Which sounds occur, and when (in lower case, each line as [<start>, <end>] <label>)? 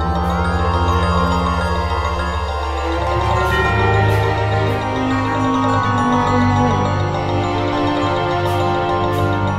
[0.03, 9.55] music